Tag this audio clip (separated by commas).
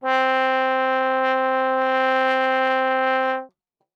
Musical instrument, Music, Brass instrument